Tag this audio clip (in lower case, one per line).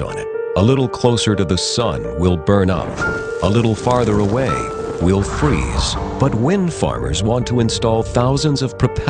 music
speech